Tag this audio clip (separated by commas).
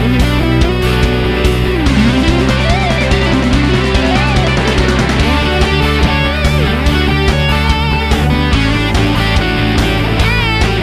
Electric guitar, Musical instrument, Plucked string instrument, Guitar, Music